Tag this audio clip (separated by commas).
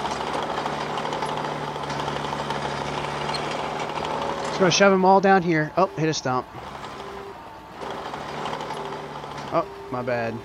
Speech, Vehicle, Lawn mower